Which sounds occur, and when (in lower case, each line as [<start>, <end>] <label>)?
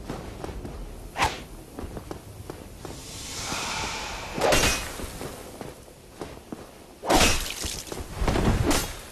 [0.00, 9.11] background noise
[0.00, 9.11] video game sound
[0.07, 0.28] walk
[0.41, 0.71] walk
[1.13, 1.50] sound effect
[1.74, 1.99] walk
[2.11, 2.26] walk
[2.46, 2.63] walk
[2.82, 3.46] sound effect
[2.83, 2.95] walk
[3.42, 4.39] breathing
[3.45, 3.57] walk
[3.85, 3.94] walk
[4.38, 4.88] sound effect
[4.94, 5.06] walk
[5.23, 5.37] walk
[5.58, 5.77] walk
[6.18, 6.40] walk
[6.54, 6.73] walk
[7.05, 7.57] sound effect
[7.64, 7.79] walk
[7.93, 8.09] walk
[8.20, 9.04] sound effect